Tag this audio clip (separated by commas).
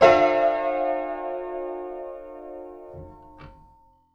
Piano, Keyboard (musical), Musical instrument, Music